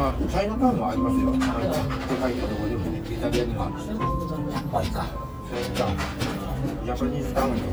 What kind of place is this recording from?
restaurant